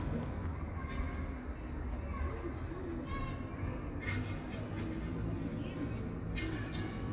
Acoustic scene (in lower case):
park